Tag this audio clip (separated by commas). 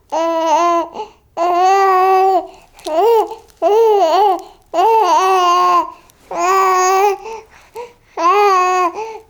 Speech, Human voice